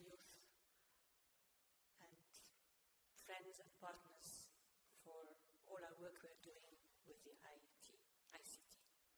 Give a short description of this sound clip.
She is giving a speech